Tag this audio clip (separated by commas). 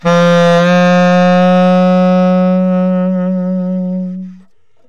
Musical instrument, Music, Wind instrument